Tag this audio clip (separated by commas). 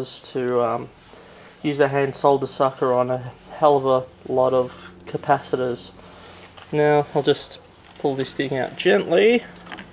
Speech